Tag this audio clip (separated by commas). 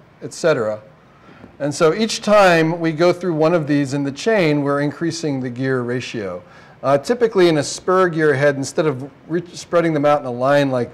Speech